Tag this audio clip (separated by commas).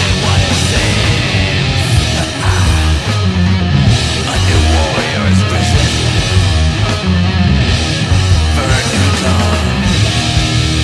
Heavy metal, Music